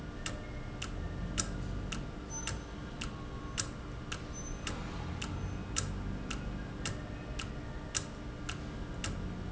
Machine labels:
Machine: valve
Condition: normal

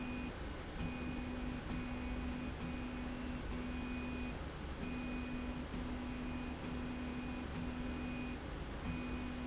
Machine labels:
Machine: slide rail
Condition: normal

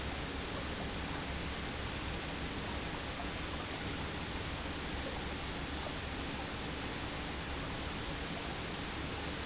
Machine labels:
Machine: pump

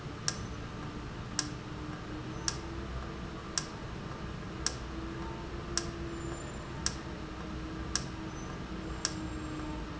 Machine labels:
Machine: valve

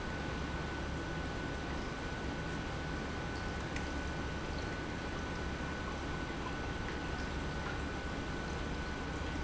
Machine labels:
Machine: pump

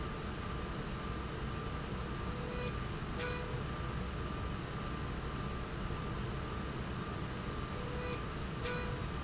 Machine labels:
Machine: slide rail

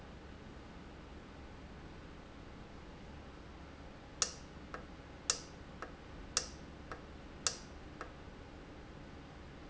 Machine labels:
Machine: valve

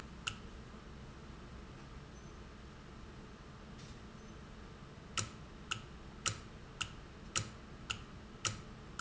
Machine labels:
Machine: valve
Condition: normal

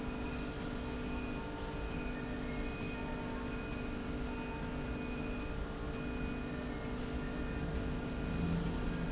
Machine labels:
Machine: slide rail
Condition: normal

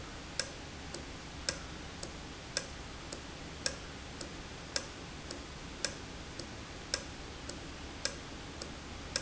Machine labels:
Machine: valve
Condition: normal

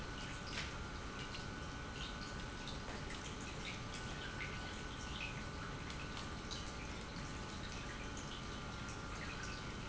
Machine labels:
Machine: pump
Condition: normal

